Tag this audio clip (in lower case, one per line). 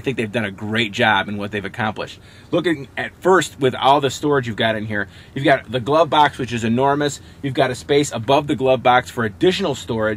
speech